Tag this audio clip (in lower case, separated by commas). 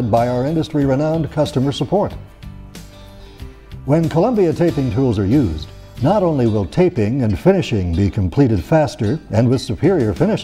music, speech